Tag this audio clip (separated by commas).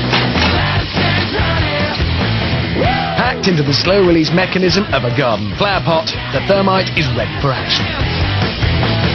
Speech, Music